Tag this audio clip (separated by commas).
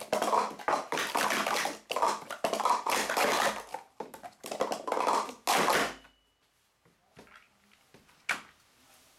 inside a small room